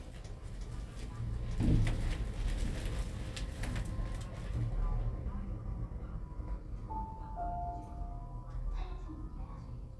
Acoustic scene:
elevator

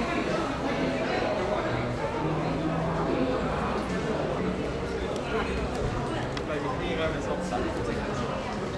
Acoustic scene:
crowded indoor space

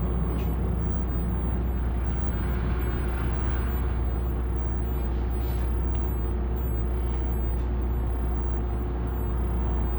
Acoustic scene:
bus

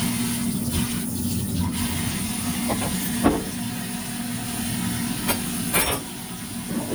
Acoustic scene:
kitchen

